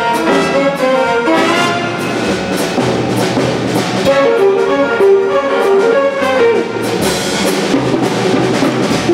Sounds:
Blues, Bowed string instrument, Musical instrument, Jazz, Piano, Music, Guitar, Orchestra

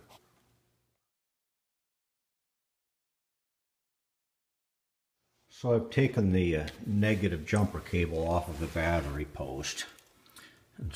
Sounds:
Speech

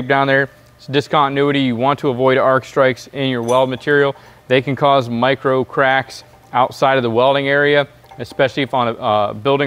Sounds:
arc welding

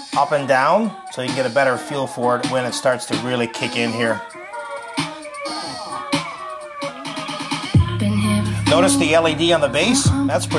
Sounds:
Speech, Music

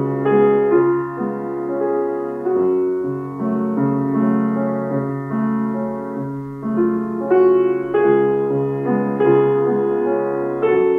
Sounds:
Musical instrument, Music, Piano, Keyboard (musical)

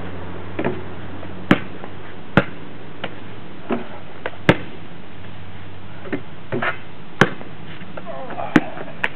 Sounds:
Basketball bounce

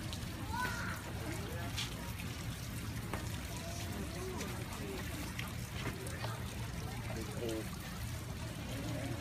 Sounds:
cheetah chirrup

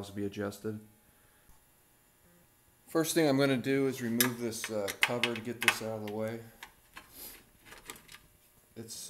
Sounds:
Speech

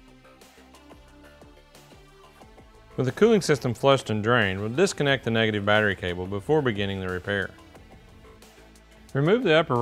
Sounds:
Speech, Music

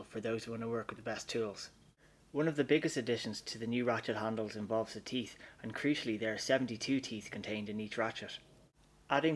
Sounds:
Tools, Speech

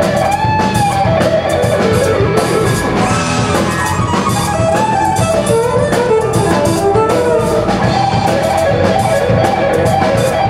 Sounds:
Acoustic guitar, Violin, Electric guitar, Guitar, Musical instrument, Strum, Music

